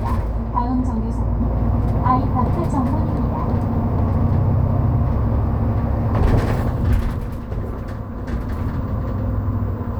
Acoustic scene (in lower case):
bus